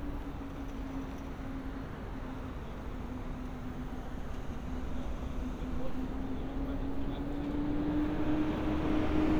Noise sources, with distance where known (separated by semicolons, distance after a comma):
large-sounding engine, near; person or small group talking, near